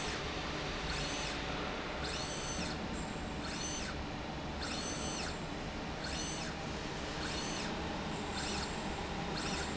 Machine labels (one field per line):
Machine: slide rail